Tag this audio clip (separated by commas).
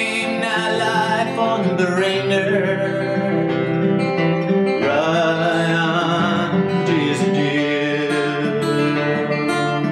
Country, Music